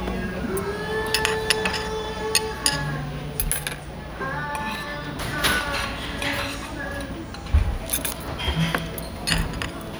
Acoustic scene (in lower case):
restaurant